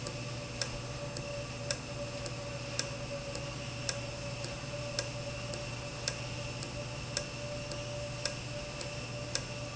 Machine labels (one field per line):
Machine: valve